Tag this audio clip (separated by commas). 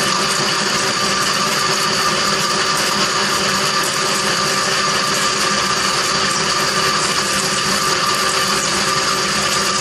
Power tool, inside a small room